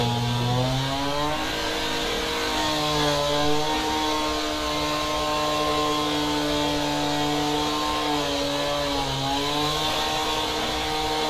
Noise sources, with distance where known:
chainsaw, near

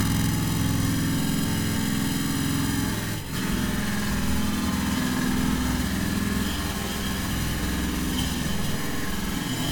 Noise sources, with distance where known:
unidentified impact machinery, near

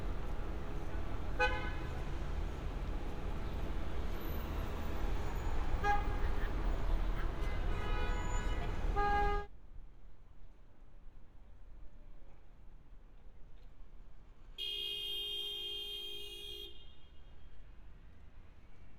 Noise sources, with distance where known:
car horn, near

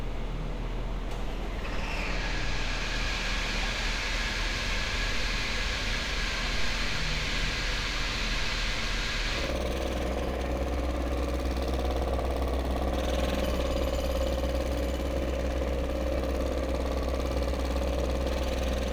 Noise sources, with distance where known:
unidentified impact machinery

